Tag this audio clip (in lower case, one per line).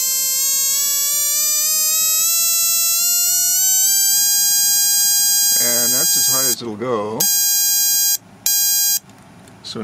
inside a large room or hall
speech